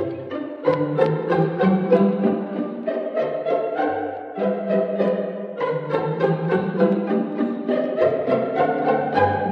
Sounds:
musical instrument, pizzicato, music

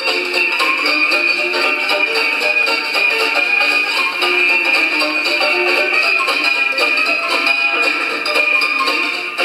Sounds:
music, blues

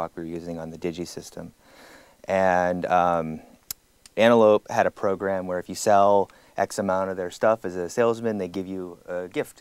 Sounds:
speech

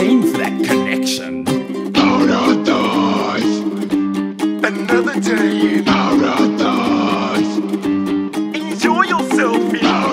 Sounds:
tender music, music

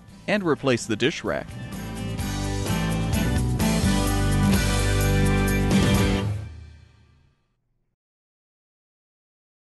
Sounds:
music, speech

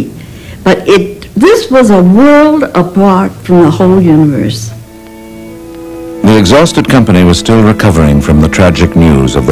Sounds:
speech, music

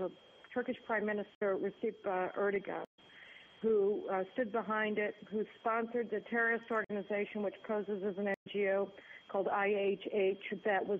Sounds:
speech

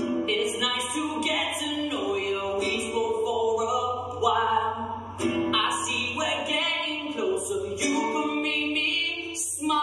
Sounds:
music

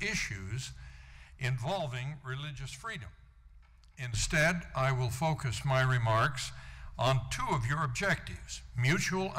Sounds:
narration, speech, male speech

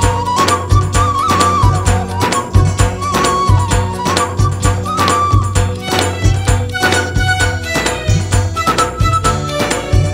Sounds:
music

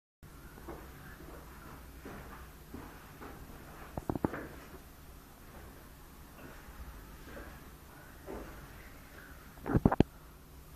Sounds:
inside a small room

